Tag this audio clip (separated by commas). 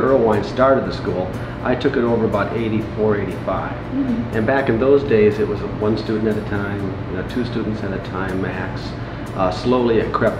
Speech